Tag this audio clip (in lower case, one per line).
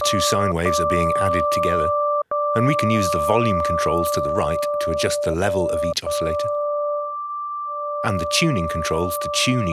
speech